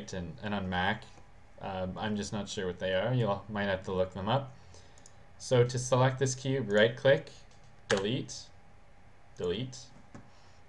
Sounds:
Speech

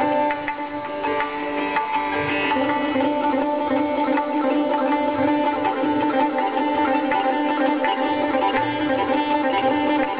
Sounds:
Classical music, Sitar, Music, Percussion, Musical instrument, Tabla, Plucked string instrument, Traditional music

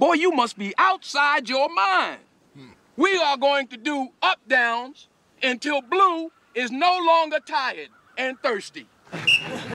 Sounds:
Speech

